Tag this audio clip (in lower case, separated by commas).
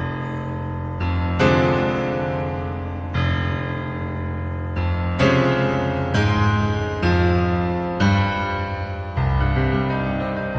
music